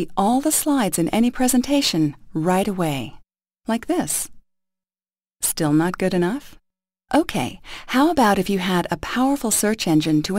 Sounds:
Speech

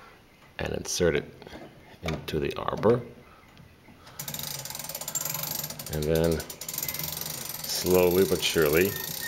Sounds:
Speech

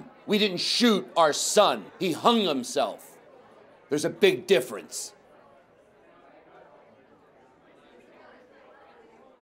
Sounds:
Speech

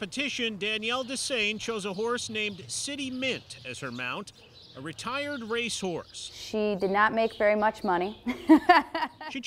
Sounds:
Speech

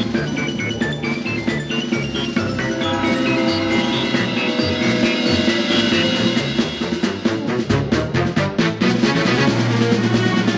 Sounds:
Funny music, Music

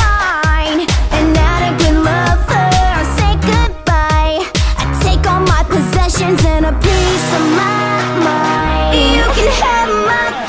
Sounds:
Music

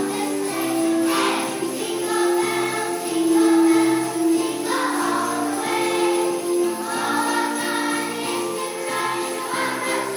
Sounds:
tinkle

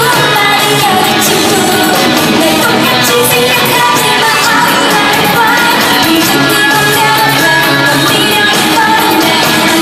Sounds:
Music, inside a large room or hall, Singing, Pop music

